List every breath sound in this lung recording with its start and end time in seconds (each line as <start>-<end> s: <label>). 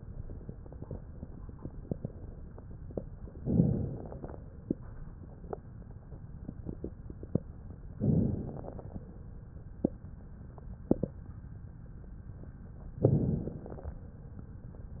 3.44-4.34 s: inhalation
3.44-4.34 s: crackles
8.01-8.91 s: crackles
8.03-8.93 s: inhalation
13.05-13.96 s: inhalation
13.05-13.96 s: crackles